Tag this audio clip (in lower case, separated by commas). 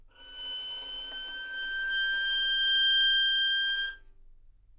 bowed string instrument, musical instrument, music